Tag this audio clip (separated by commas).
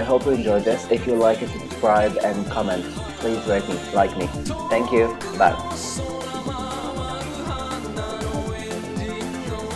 Music, Speech